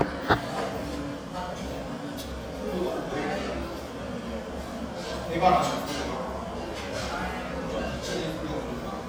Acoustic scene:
restaurant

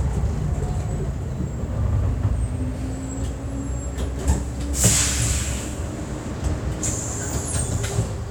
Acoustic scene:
bus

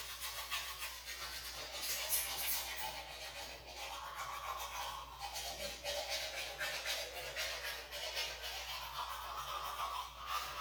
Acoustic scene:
restroom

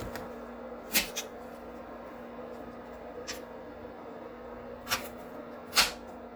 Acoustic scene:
kitchen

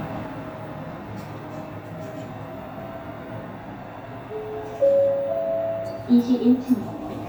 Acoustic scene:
elevator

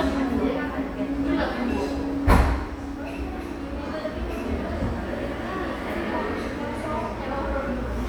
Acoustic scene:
cafe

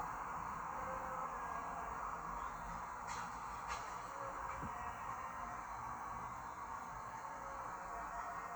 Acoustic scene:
park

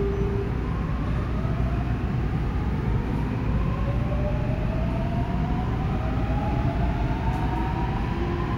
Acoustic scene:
subway station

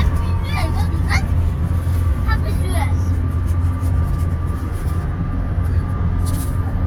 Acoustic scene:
car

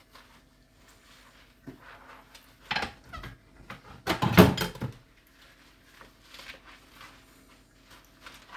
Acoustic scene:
kitchen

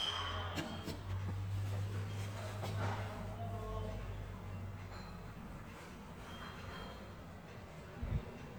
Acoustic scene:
elevator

